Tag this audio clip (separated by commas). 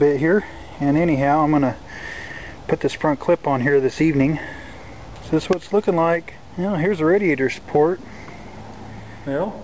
Speech